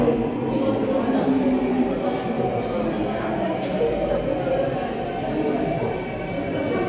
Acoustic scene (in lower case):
subway station